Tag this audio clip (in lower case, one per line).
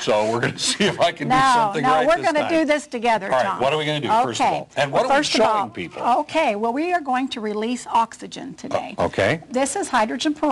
speech